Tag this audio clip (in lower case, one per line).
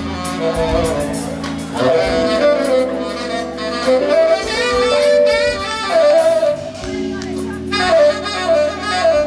music
speech